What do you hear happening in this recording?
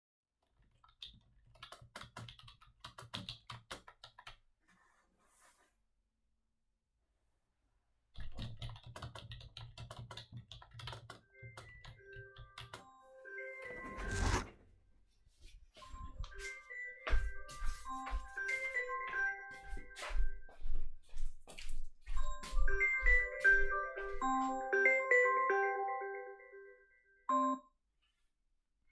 I typed and moved the mouse. I rose and moved the chair. I went to the living room to turn of the phone.